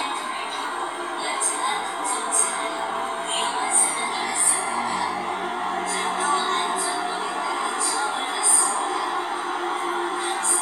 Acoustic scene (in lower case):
subway train